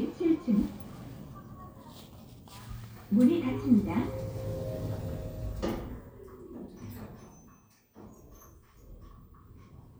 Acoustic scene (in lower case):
elevator